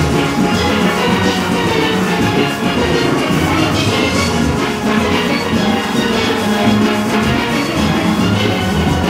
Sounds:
Music, Orchestra

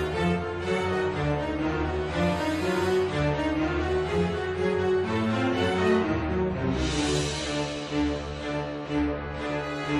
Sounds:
Harpsichord

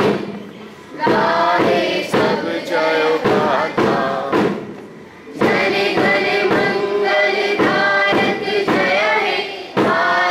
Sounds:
Music, thud, Choir

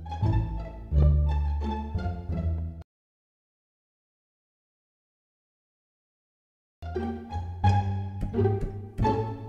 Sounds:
Music

